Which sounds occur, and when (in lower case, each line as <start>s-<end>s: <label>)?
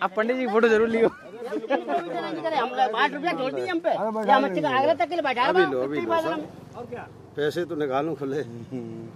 0.0s-1.1s: man speaking
0.0s-9.1s: conversation
0.0s-9.1s: wind
1.1s-2.1s: chuckle
1.2s-6.5s: man speaking
6.2s-9.1s: motor vehicle (road)
6.7s-6.8s: clicking
6.7s-7.1s: man speaking
7.3s-8.4s: man speaking
8.4s-9.1s: chuckle